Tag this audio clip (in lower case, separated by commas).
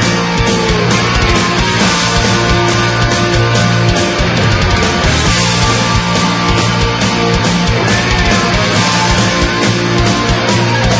music